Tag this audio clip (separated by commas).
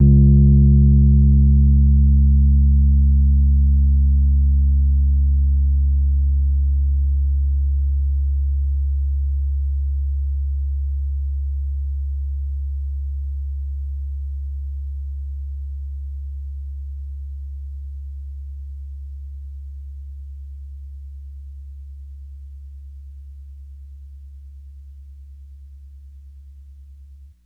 Keyboard (musical), Piano, Musical instrument, Music